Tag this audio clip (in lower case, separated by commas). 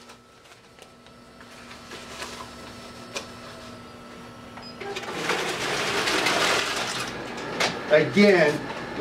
speech, printer